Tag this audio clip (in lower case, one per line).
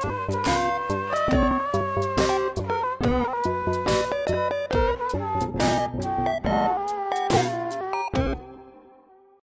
music